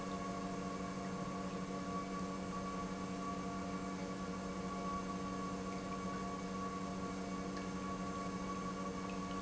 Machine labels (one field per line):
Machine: pump